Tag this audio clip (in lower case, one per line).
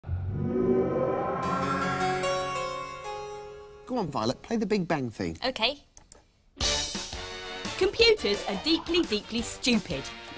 harpsichord